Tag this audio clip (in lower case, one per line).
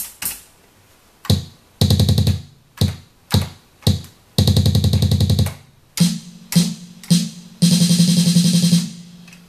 music
musical instrument
sampler
computer keyboard